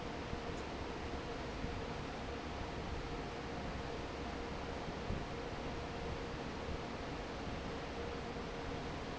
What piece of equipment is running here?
fan